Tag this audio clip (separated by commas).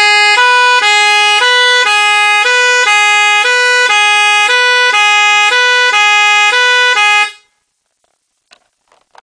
Siren